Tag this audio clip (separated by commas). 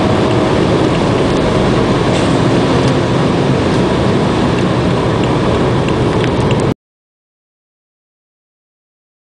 Car, Vehicle